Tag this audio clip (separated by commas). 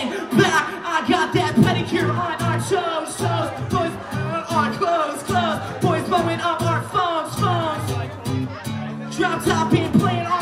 Music, Speech